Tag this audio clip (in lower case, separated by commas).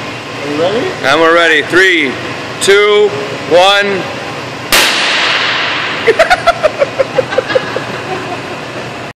speech, pop